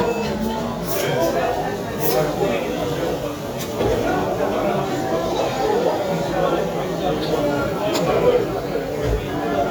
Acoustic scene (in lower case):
cafe